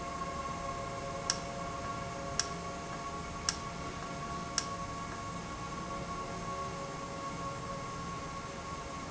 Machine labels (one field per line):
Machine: valve